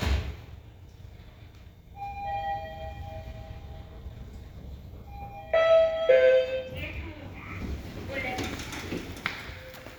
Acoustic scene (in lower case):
elevator